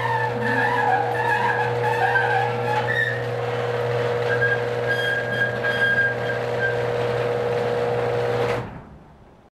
A motor is running, metal scraping and squeaking are present, and a clang occurs